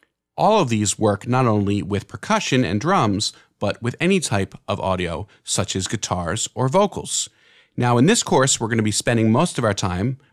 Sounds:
Speech

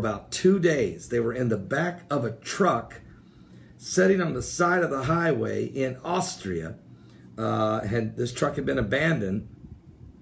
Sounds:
Speech

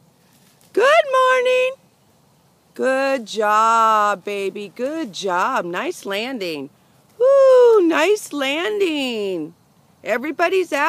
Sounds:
Speech

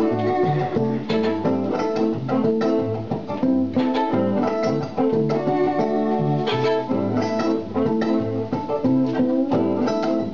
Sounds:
Violin, Music, Bowed string instrument, inside a large room or hall, Musical instrument

